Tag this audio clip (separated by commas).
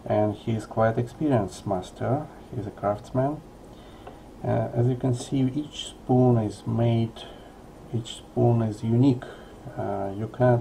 Speech